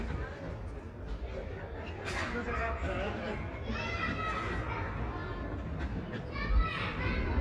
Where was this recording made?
in a residential area